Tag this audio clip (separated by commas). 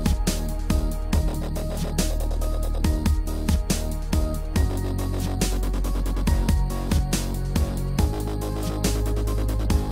Music